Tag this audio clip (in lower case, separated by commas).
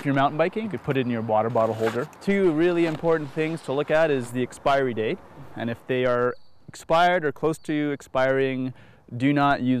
speech